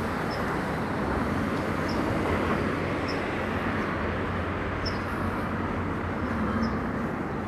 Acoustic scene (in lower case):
residential area